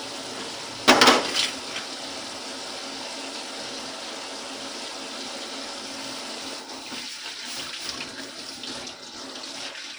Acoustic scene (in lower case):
kitchen